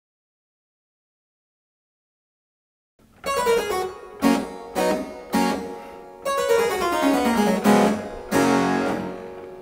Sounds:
playing harpsichord

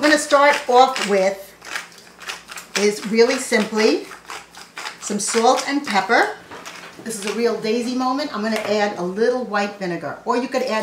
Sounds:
Speech

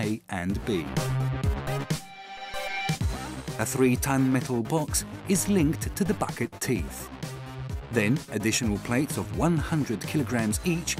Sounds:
Music, Speech

